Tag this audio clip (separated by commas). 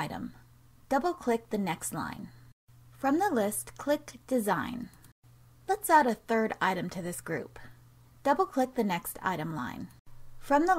Narration